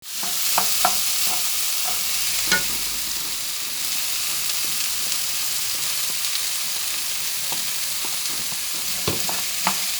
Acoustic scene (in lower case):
kitchen